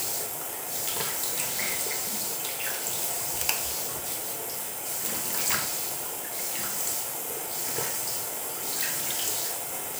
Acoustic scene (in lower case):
restroom